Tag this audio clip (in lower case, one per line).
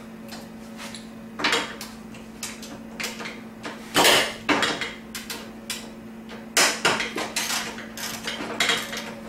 dishes, pots and pans
inside a small room
vehicle